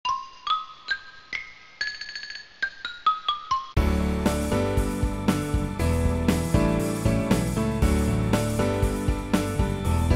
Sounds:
Music

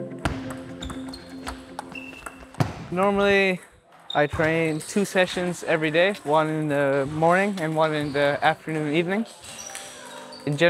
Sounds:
playing table tennis

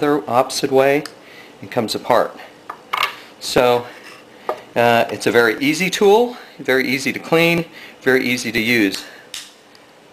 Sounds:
Speech

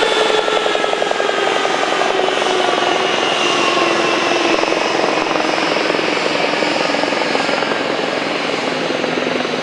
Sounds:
Aircraft, Vehicle, airplane

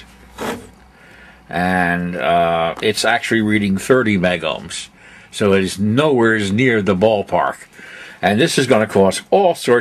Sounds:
Speech

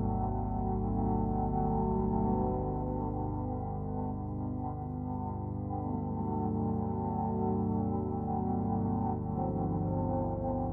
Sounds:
Music, Ambient music

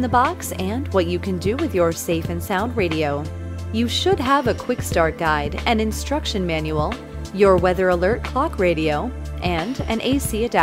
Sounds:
Music, Speech

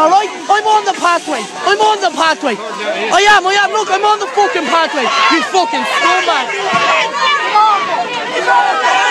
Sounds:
Speech

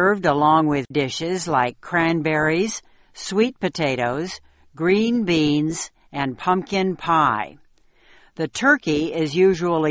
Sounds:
Speech

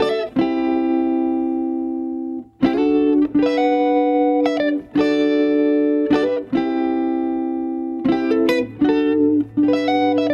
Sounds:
Guitar, Musical instrument, Music, Plucked string instrument, Strum

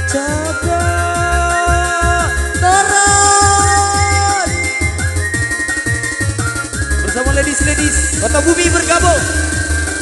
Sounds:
Happy music, Music

